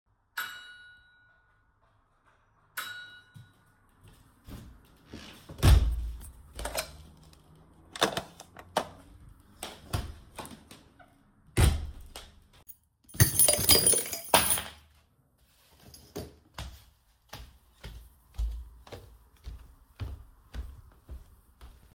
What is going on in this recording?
Somebody rang the bell. I walked from the kitchen, the door slammed, I picked up the telephone, and grabbed my keys which fell down before I picked them up.